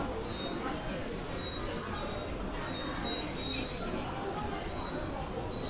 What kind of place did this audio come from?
subway station